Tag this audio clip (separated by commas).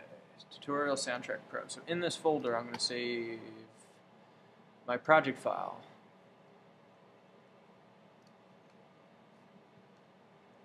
Speech